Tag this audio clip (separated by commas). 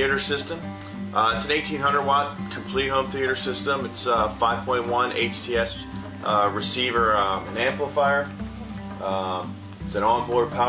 Music, Speech